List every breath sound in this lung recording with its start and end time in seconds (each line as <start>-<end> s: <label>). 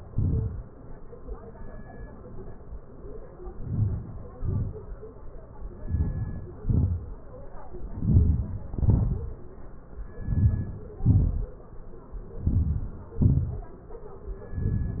3.63-4.18 s: inhalation
4.38-4.82 s: exhalation
5.91-6.46 s: inhalation
6.66-7.10 s: exhalation
7.95-8.59 s: inhalation
8.84-9.36 s: exhalation
10.25-10.91 s: inhalation
11.10-11.56 s: exhalation
12.47-13.04 s: inhalation
13.27-13.75 s: exhalation